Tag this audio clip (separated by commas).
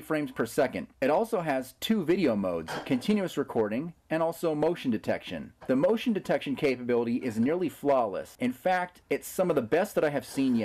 Speech